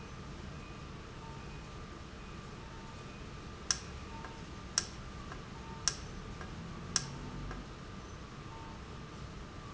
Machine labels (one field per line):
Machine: valve